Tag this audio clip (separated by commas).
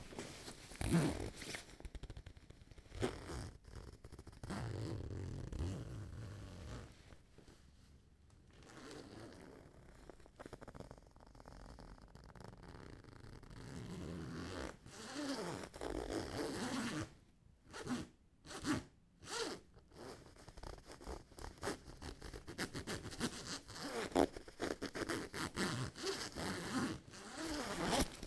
Zipper (clothing), home sounds